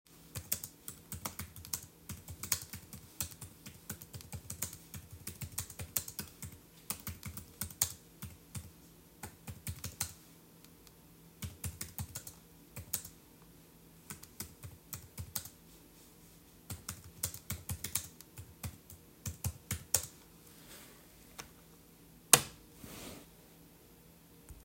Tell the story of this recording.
I started recording then I started tying for some time and then I switch off the light